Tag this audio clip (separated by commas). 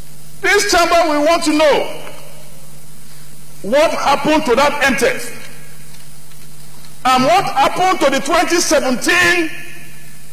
Narration, Speech